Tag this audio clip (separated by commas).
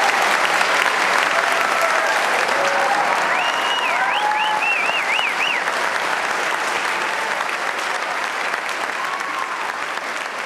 people clapping, Applause